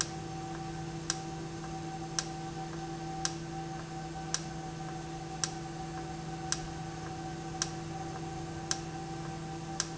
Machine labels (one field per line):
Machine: valve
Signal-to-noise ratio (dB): -6 dB